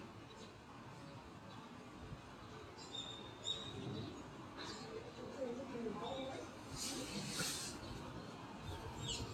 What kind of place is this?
residential area